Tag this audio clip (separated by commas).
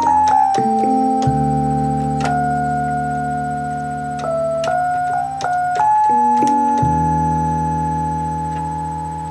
Music, inside a small room